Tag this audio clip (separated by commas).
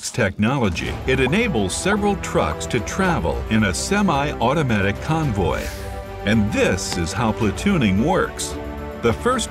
Speech, Music